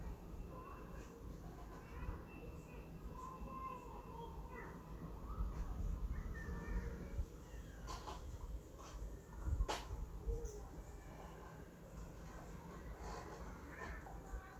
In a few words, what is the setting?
residential area